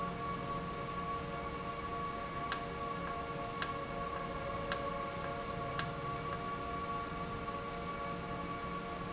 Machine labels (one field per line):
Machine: valve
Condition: normal